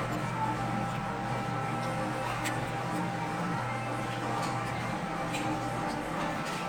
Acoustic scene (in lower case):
cafe